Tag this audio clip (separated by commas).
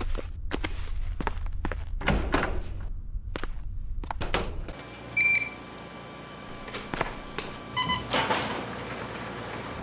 inside a small room